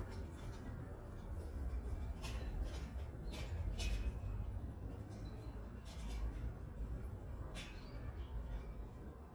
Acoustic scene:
residential area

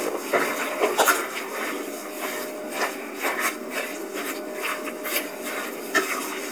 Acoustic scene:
kitchen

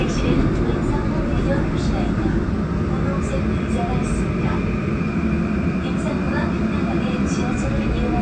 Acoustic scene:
subway train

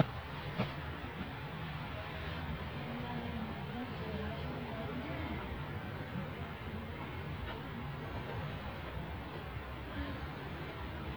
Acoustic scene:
residential area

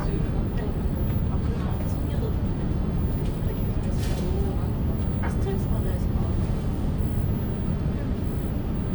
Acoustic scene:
bus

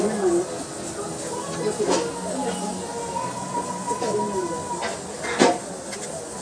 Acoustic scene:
restaurant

